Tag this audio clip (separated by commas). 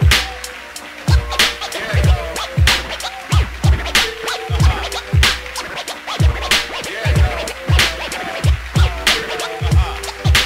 Music, Scratching (performance technique)